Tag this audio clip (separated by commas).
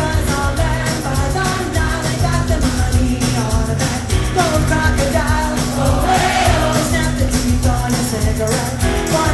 Music